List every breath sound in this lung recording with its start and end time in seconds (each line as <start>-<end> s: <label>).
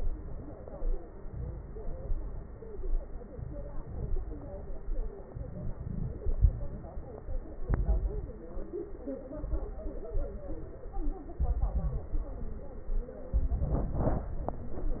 1.23-2.07 s: inhalation
1.23-2.07 s: crackles
2.11-2.73 s: exhalation
2.11-2.73 s: crackles
3.31-4.14 s: inhalation
3.31-4.14 s: crackles
4.18-4.80 s: exhalation
4.18-4.80 s: crackles
5.30-6.13 s: inhalation
5.30-6.13 s: crackles
6.17-7.01 s: exhalation
6.17-7.01 s: crackles
7.66-8.38 s: inhalation
7.66-8.38 s: crackles
9.40-10.13 s: inhalation
9.40-10.13 s: crackles
10.16-10.89 s: exhalation
10.16-10.89 s: crackles
11.42-12.14 s: inhalation
11.42-12.14 s: crackles
12.20-12.92 s: exhalation
12.20-12.92 s: crackles
13.36-14.33 s: inhalation
13.36-14.33 s: crackles
14.37-15.00 s: exhalation
14.37-15.00 s: crackles